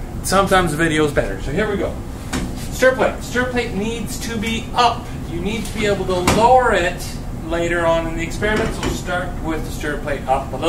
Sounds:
speech

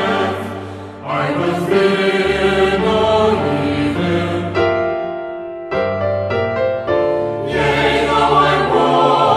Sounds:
music, chant

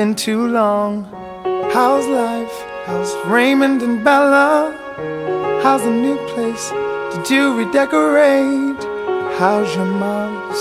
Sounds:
music

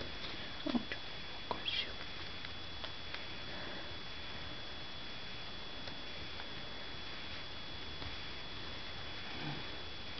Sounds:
speech, domestic animals, animal, dog

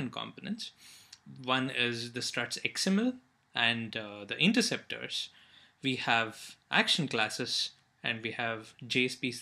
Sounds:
speech

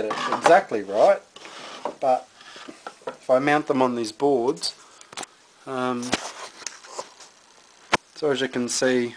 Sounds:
speech, inside a small room

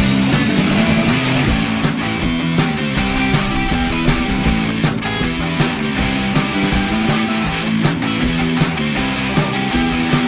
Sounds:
music

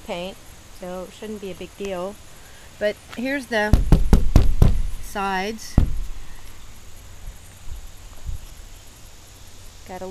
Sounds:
vehicle, speech

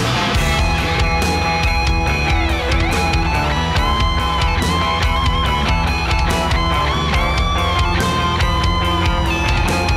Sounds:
music, jazz

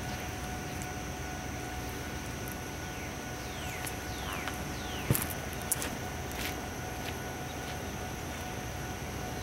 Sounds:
vehicle, car, revving

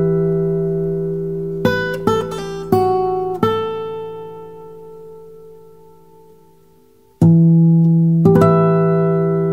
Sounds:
electronic tuner, music

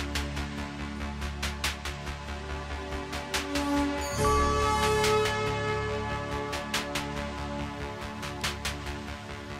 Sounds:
flute, music

